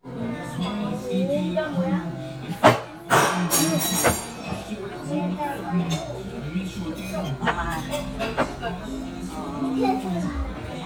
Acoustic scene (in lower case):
crowded indoor space